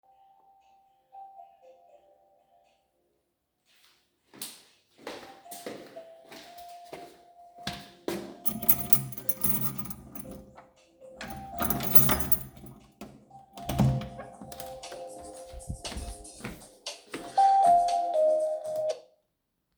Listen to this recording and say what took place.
I was in the hallway and hear the phoneringing so I walk towards the door and using the key I opened the door and cut the call.